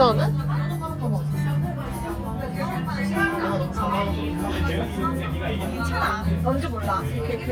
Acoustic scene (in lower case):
crowded indoor space